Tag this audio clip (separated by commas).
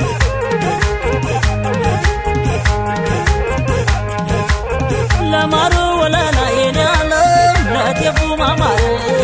Music